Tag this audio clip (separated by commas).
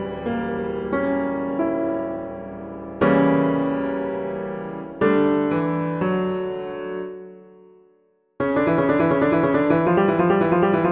Music